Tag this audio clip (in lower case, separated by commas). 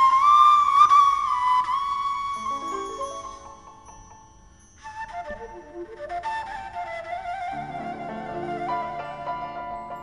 orchestra, music